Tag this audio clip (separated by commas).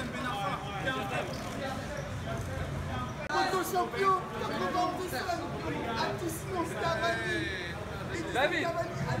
Speech